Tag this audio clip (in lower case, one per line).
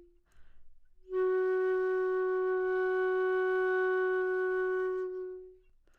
music
musical instrument
woodwind instrument